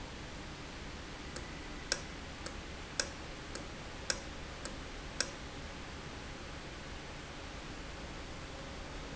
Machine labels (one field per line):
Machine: valve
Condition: normal